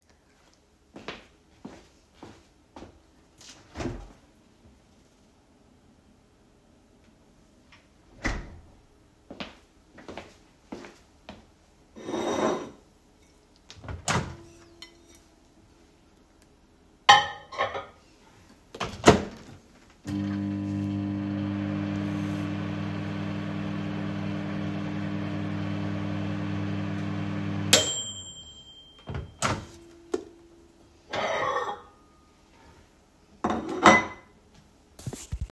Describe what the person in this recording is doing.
I walked into the pantry and opened the fridge. After finding nothing, I went over to the counter and grabbed the available food on the plate. I opened the microwave and reheated the food. After that, I took the plate off the microwave.